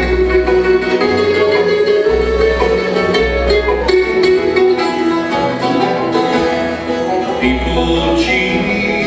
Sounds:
music, bluegrass

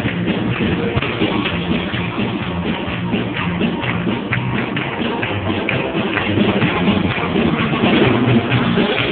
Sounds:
music, christmas music

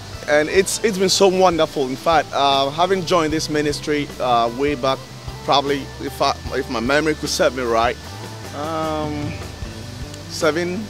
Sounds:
speech, music

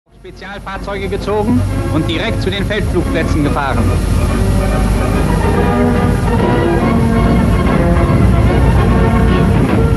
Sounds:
train, vehicle, rail transport

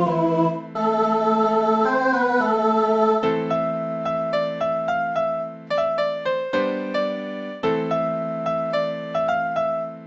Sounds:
musical instrument, music, fiddle

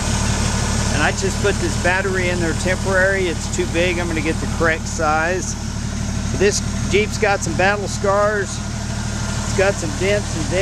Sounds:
speech, vehicle

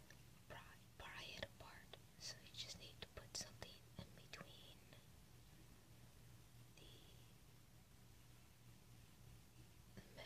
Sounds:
speech, inside a small room, whispering

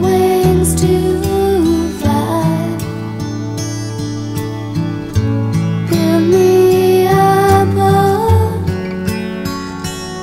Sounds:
music

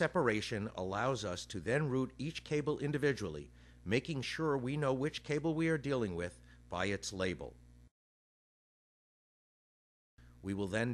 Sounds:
speech

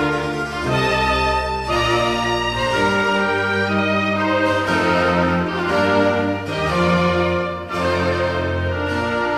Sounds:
music

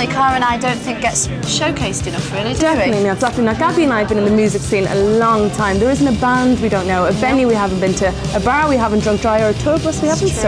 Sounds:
music, speech

